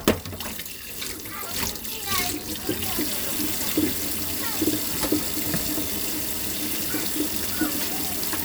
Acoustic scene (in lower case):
kitchen